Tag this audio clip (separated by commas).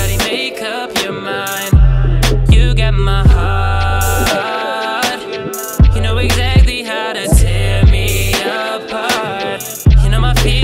Music